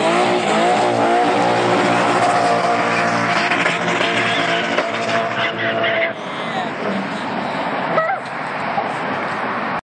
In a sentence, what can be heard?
A car is driving by loudly followed by a man talking